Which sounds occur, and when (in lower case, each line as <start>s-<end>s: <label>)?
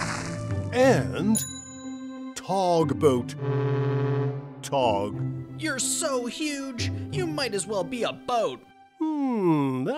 0.0s-0.7s: splatter
0.0s-9.9s: music
0.7s-1.4s: male speech
2.3s-3.3s: male speech
3.4s-4.5s: foghorn
4.6s-5.2s: male speech
5.6s-6.9s: male speech
6.9s-7.1s: breathing
7.1s-8.6s: male speech
9.0s-9.9s: male speech